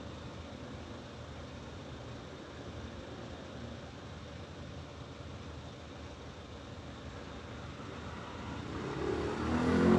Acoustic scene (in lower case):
residential area